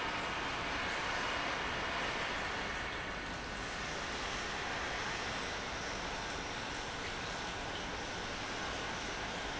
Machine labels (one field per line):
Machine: pump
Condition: normal